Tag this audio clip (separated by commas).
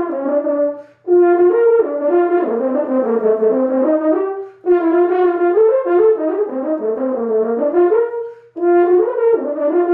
playing french horn